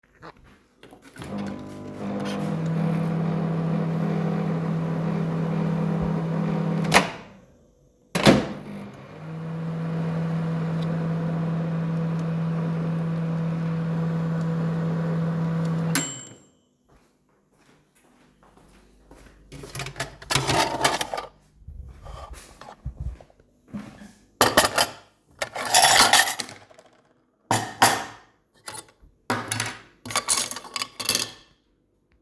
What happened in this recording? I was using the microwave and then need my dishes and cutlury. So I opened my locker took out some dishes and cutluries.